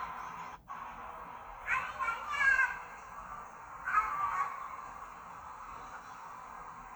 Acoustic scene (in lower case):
park